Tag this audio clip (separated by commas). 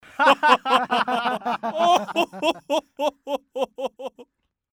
Laughter, Human voice